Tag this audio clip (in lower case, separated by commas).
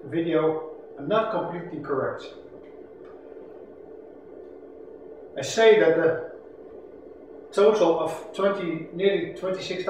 speech